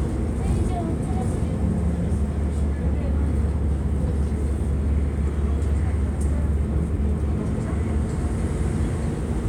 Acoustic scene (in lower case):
bus